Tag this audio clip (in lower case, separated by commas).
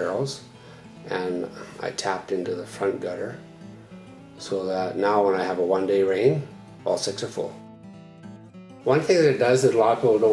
music, speech